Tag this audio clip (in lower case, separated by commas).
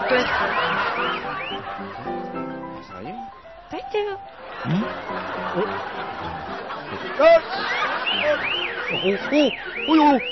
music, speech